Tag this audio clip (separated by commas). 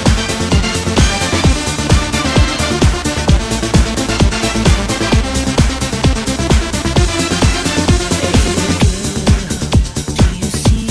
Electronic music, Techno, Music